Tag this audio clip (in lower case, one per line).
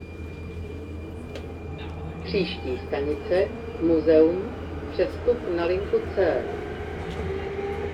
vehicle
rail transport
underground